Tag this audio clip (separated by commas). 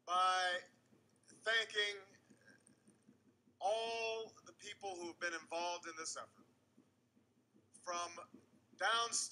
Male speech, Speech, monologue